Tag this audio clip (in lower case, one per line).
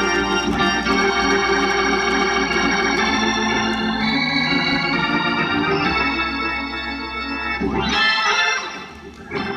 playing hammond organ